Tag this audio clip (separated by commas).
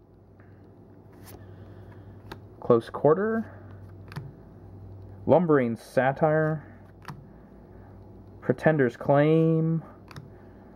Speech